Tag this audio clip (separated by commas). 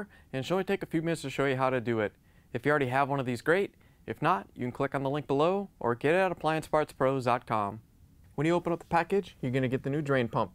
Speech